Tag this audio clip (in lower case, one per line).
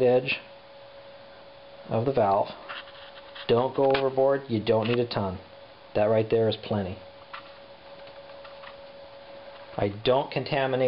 speech